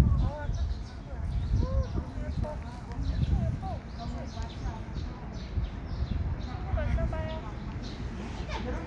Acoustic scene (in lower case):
park